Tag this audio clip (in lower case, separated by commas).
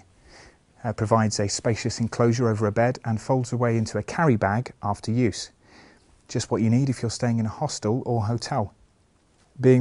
speech